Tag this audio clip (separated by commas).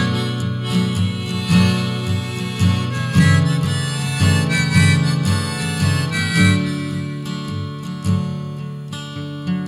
Music